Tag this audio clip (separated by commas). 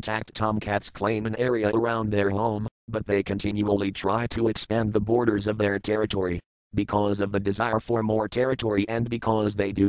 Speech